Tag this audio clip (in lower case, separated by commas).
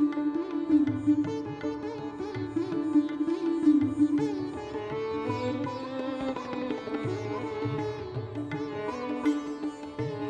music